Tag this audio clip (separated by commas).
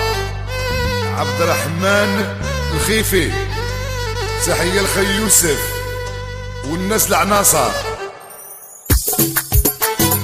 Music, Speech